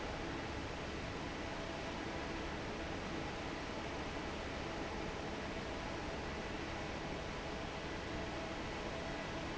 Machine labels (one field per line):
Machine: fan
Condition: normal